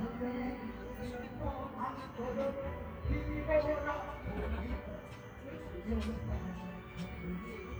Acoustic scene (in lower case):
park